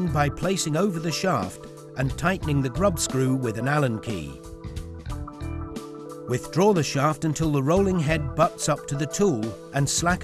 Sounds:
music
speech

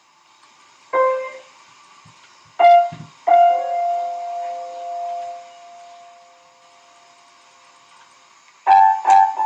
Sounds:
musical instrument
keyboard (musical)
piano
playing piano
music

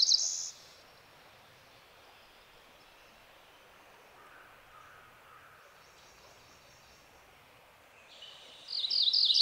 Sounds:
wood thrush calling

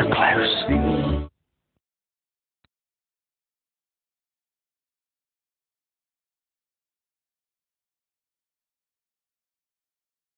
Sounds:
speech
music

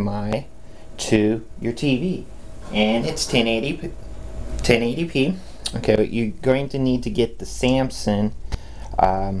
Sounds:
inside a small room
speech

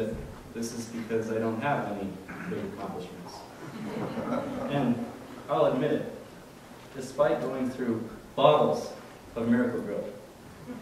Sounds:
narration
male speech
speech

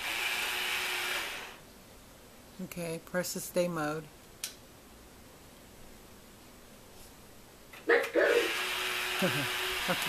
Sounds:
speech

